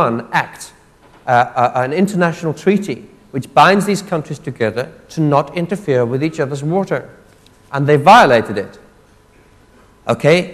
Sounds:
Speech

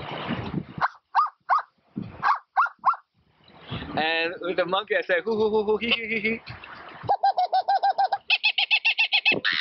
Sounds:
Speech, outside, rural or natural

